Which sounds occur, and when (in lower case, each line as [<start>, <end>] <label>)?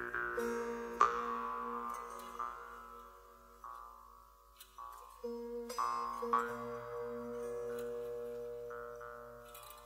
[0.00, 9.85] music